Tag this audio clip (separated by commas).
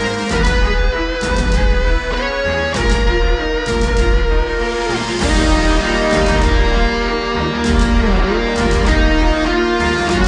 Music